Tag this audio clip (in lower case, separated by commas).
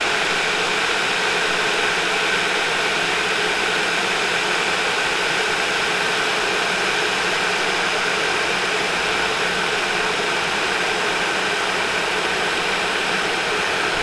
boiling, liquid